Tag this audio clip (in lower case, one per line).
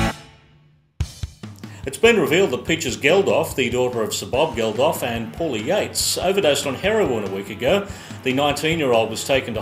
music
speech
soundtrack music